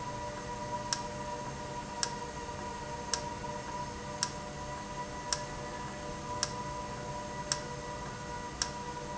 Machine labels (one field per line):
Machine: valve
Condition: normal